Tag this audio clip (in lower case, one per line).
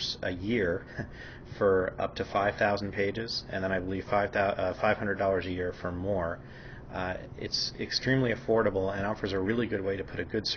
speech